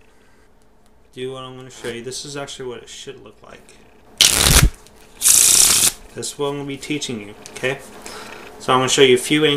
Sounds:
Shuffling cards, Speech

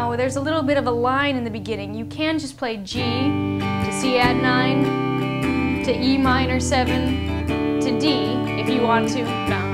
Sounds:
Speech, Strum, Music, Musical instrument, Guitar, Plucked string instrument

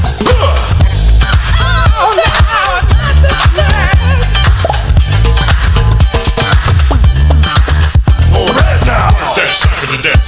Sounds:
Funk, Disco, Music

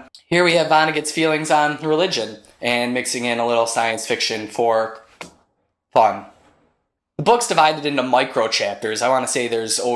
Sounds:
Speech

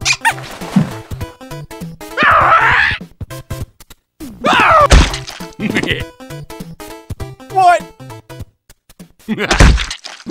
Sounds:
Speech, Quack, Music

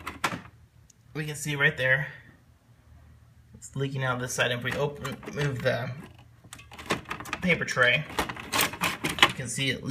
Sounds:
Speech

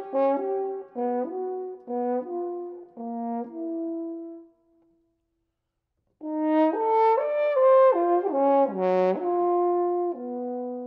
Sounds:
playing french horn

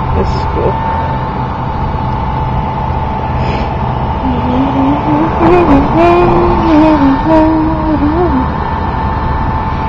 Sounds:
Vehicle, Speech

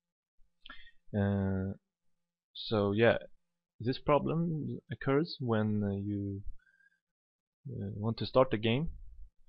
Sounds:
Speech

